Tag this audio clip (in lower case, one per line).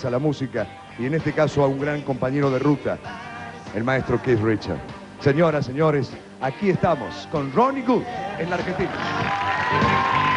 speech
music